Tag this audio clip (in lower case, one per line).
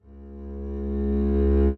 bowed string instrument
music
musical instrument